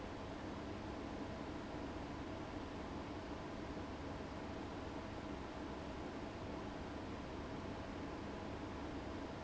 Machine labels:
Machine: fan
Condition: abnormal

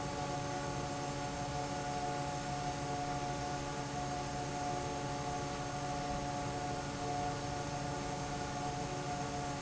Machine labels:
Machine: fan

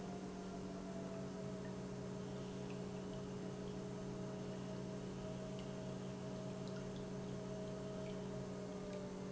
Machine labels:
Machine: pump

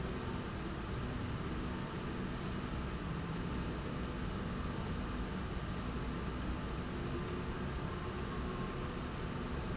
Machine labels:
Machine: slide rail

